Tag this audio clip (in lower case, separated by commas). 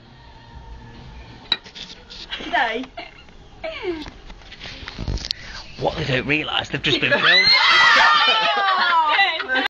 speech, music